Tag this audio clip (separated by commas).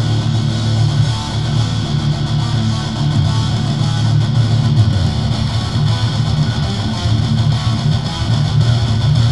Bass guitar, playing bass guitar, Strum, Plucked string instrument, Music, Guitar, Musical instrument